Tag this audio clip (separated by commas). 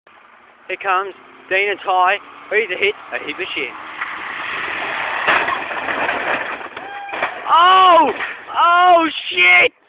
outside, urban or man-made, Speech, Car, Vehicle